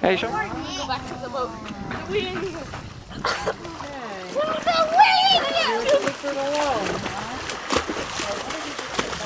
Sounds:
splatter, Speech

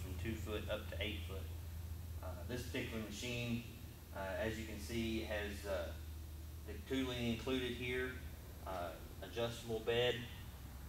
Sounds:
Speech

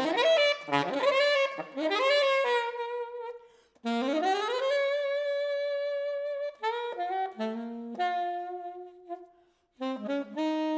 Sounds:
Music

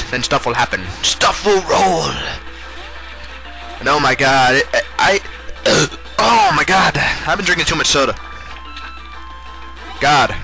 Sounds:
Speech

